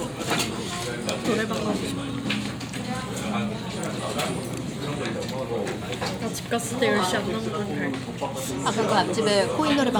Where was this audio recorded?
in a crowded indoor space